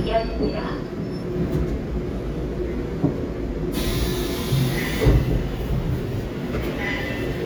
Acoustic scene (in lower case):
subway train